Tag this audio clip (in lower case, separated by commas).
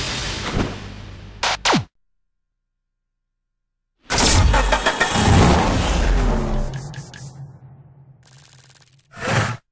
car, vehicle